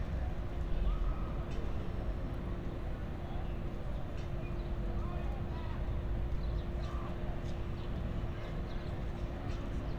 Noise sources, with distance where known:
engine of unclear size

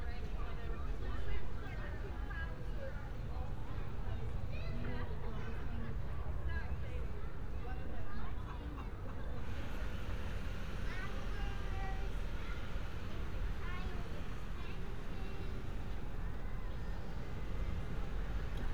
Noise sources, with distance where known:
person or small group talking

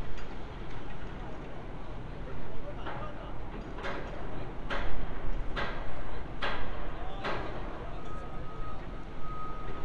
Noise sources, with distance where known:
person or small group talking

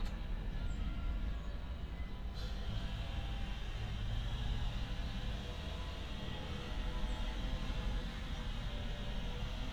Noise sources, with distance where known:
engine of unclear size, far

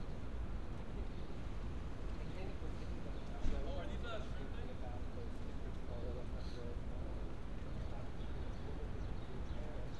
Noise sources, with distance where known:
person or small group talking, near

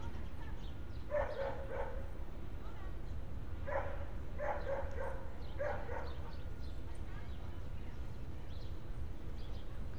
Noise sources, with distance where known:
person or small group talking; dog barking or whining, near

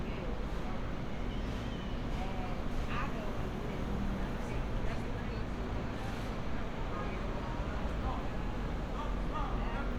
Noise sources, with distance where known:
person or small group talking

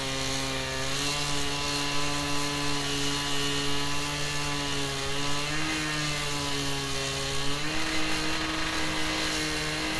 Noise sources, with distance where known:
unidentified powered saw

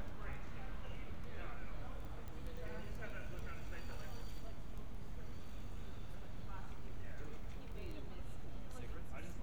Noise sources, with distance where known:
person or small group talking, far

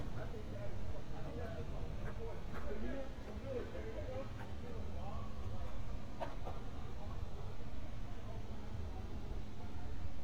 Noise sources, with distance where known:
person or small group talking

